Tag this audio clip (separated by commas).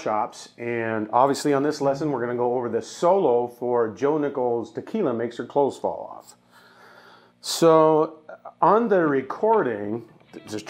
Speech